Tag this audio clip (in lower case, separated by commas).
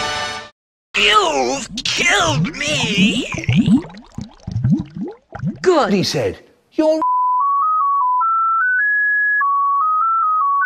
music, speech